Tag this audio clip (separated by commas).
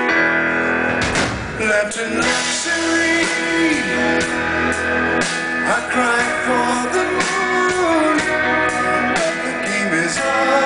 Music